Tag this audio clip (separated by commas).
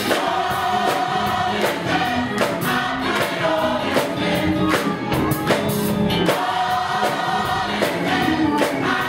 Music, Clapping, Choir